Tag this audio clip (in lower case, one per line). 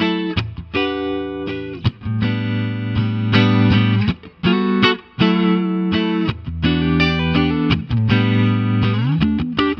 musical instrument
steel guitar
music